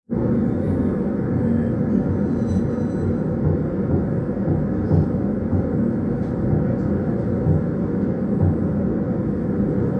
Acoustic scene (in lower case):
subway train